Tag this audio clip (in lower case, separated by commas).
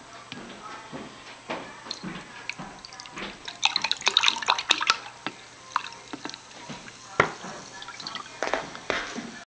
speech, chink